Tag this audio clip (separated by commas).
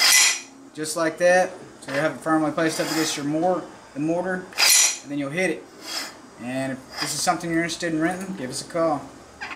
Tools, Speech